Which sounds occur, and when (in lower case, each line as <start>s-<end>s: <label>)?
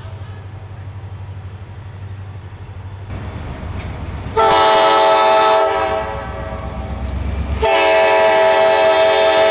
0.0s-0.5s: human voice
0.0s-9.5s: train
3.0s-3.2s: generic impact sounds
3.7s-3.9s: generic impact sounds
4.3s-6.8s: train horn
6.3s-6.6s: generic impact sounds
6.8s-7.1s: generic impact sounds
7.2s-7.4s: generic impact sounds
7.6s-9.5s: train horn